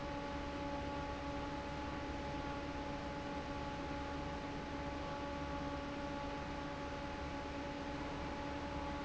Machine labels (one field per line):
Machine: fan